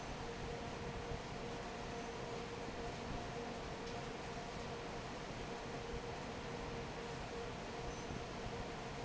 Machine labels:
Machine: fan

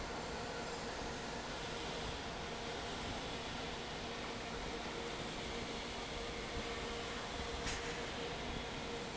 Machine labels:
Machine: fan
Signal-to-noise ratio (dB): 0 dB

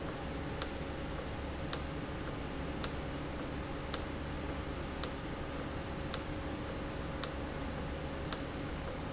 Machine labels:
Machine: valve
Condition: normal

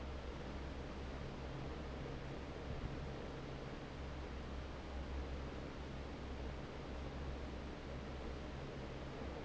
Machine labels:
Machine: fan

